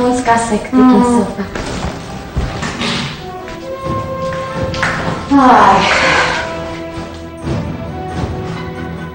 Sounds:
speech, tap, music

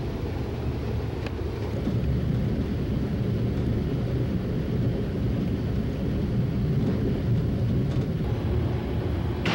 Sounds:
vehicle

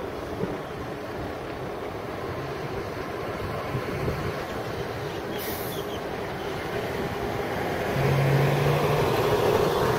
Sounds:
airplane, vehicle

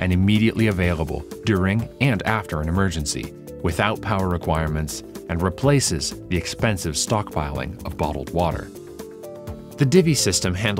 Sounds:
speech, music

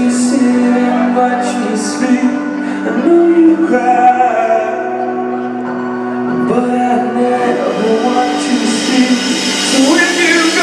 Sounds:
male singing, singing, music

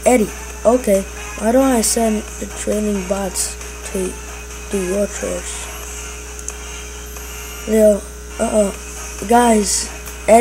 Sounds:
speech, music

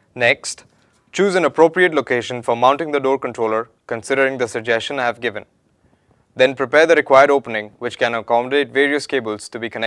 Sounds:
speech

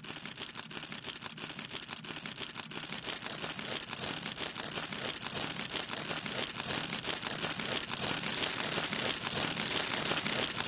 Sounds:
ferret dooking

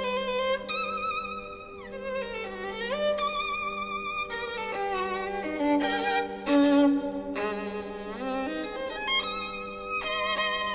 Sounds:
fiddle, musical instrument, music

